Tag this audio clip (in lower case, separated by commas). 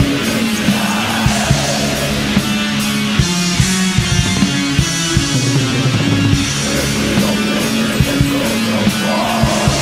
music, heavy metal